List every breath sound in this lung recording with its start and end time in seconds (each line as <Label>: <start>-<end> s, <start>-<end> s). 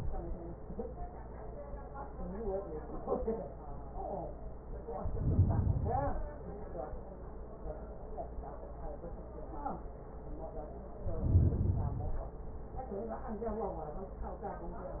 Inhalation: 4.82-6.32 s, 10.92-12.38 s